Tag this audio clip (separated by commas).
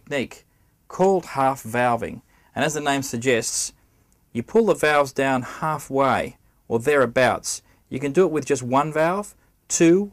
Speech